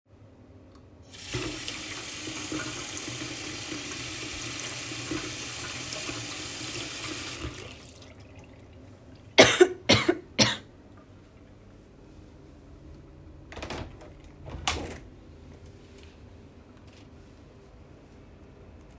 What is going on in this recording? I turned on the water, then coughed. Then I opened the window.